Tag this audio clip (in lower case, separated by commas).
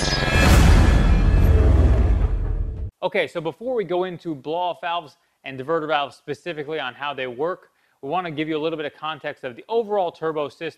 music, speech, inside a small room